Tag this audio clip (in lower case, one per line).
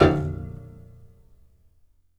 piano
musical instrument
keyboard (musical)
music